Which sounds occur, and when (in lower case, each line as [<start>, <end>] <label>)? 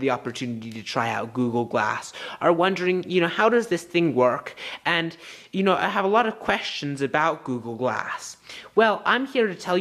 [0.01, 9.80] background noise
[0.03, 1.96] male speech
[2.07, 2.33] breathing
[2.36, 5.12] male speech
[5.12, 5.48] breathing
[5.49, 8.17] male speech
[8.36, 8.65] breathing
[8.48, 9.80] male speech